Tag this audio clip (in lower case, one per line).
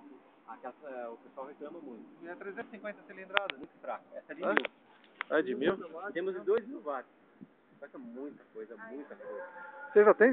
speech